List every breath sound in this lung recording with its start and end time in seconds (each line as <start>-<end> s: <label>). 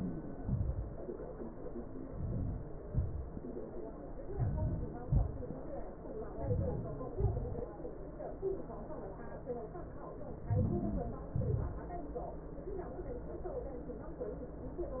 4.23-4.92 s: inhalation
4.92-5.49 s: exhalation
6.01-7.08 s: inhalation
7.15-7.93 s: exhalation
10.11-11.21 s: inhalation
11.23-12.33 s: exhalation